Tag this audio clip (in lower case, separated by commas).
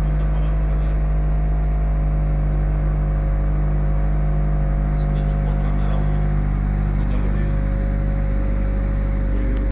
vehicle, engine, speech